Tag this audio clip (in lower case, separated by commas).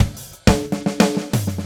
musical instrument, drum kit, percussion, music